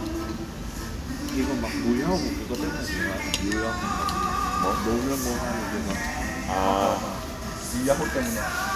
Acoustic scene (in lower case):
restaurant